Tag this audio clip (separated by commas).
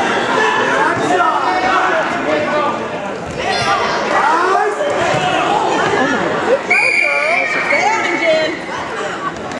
Speech